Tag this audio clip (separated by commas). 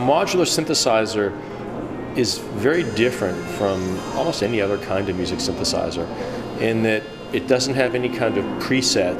Sampler, Music, Speech